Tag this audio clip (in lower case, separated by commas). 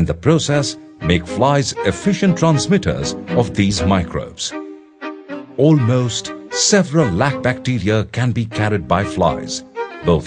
music, speech